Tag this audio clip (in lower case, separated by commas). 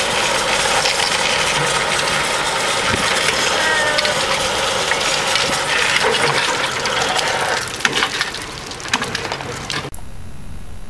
speech, skateboard